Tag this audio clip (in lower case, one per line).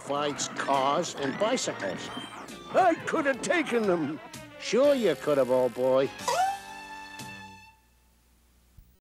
speech
music